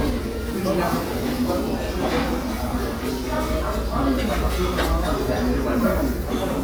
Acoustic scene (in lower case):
restaurant